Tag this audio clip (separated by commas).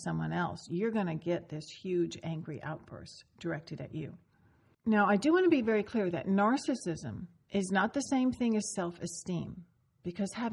Speech